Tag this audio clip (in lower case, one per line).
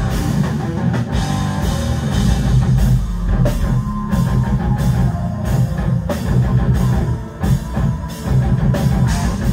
rock music
music
heavy metal